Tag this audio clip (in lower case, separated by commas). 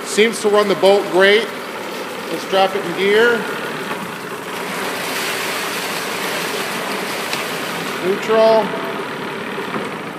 speech